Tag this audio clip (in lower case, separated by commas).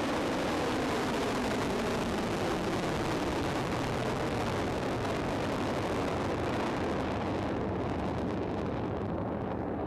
missile launch